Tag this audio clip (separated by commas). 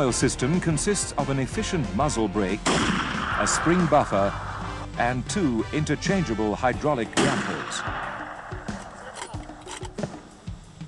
firing cannon